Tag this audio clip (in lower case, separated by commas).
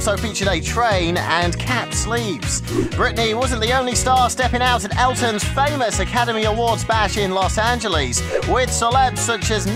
speech, music